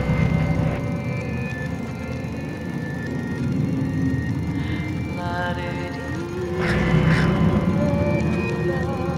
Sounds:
music

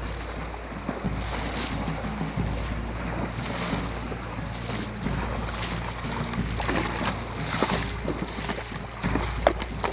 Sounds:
music
animal

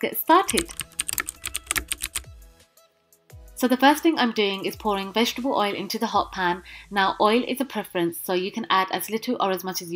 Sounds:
speech
music

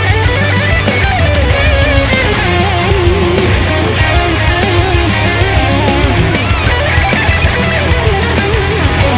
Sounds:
heavy metal
electric guitar
musical instrument
guitar
music

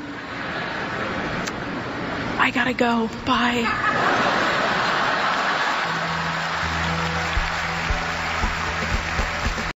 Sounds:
woman speaking
music
speech

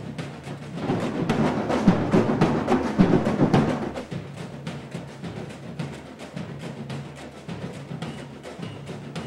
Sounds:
music
wood block
percussion

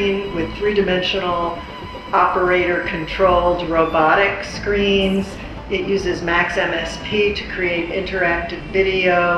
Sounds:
speech

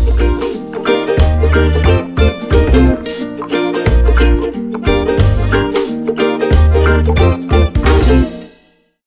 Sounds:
music

